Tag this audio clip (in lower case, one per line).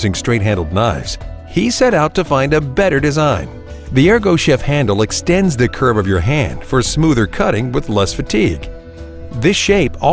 music
speech